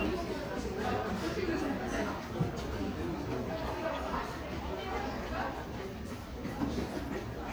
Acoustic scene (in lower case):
crowded indoor space